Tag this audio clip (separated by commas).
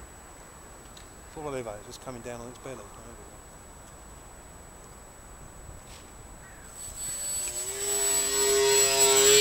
Aircraft, outside, rural or natural, Speech